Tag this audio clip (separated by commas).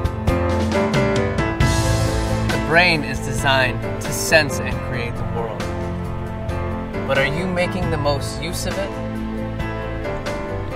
Speech, Music